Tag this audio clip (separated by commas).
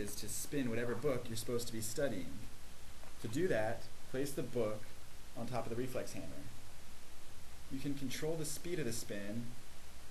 Speech